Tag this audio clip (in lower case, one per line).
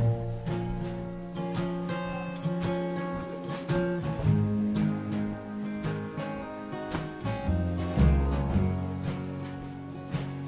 music